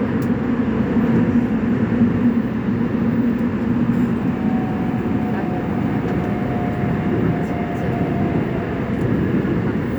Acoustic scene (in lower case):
subway train